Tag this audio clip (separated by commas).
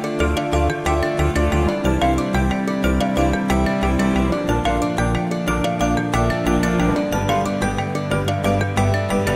Music